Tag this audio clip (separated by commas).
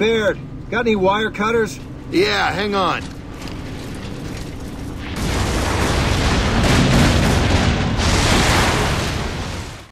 Speech